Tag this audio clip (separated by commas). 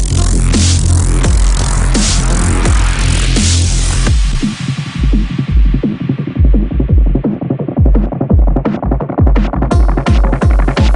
Electronic music, Music, Dubstep